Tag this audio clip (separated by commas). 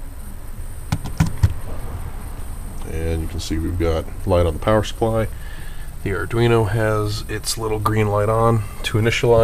Speech